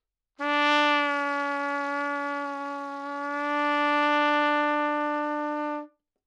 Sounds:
musical instrument
brass instrument
trumpet
music

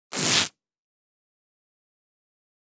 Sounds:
domestic sounds

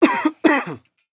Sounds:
respiratory sounds
cough

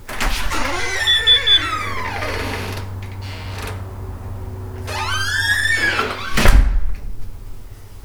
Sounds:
slam
wood
squeak
home sounds
door
alarm

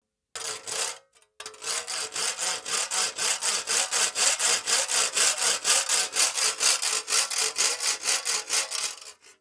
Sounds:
tools
sawing

